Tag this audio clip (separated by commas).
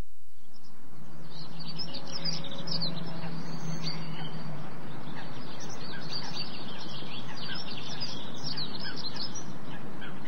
Bird vocalization, Chirp, Bird